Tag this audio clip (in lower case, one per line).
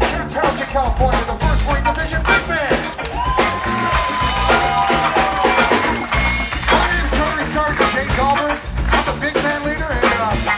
music